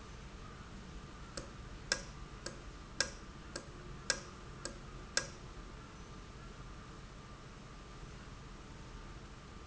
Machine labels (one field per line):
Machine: valve